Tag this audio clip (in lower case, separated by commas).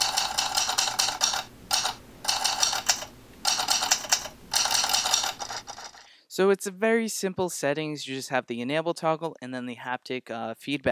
speech